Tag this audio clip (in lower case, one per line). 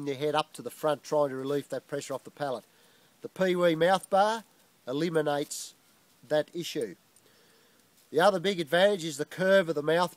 speech